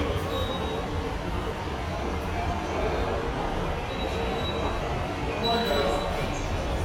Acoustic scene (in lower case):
subway station